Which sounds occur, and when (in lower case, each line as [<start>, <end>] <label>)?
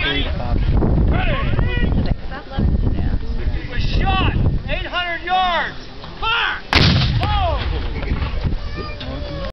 [0.00, 0.75] man speaking
[0.00, 4.68] wind noise (microphone)
[1.12, 1.95] man speaking
[1.58, 1.66] tick
[1.93, 2.72] woman speaking
[2.95, 3.23] woman speaking
[3.42, 6.67] man speaking
[4.95, 9.52] background noise
[6.02, 6.18] generic impact sounds
[6.74, 7.49] artillery fire
[7.15, 8.17] man speaking
[7.21, 7.33] generic impact sounds
[7.95, 8.24] generic impact sounds
[8.43, 8.55] generic impact sounds
[8.55, 9.52] child speech
[8.69, 8.88] man speaking
[9.02, 9.52] generic impact sounds
[9.03, 9.52] man speaking